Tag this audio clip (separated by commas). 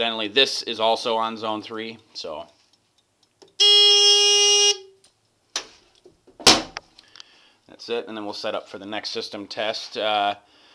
Speech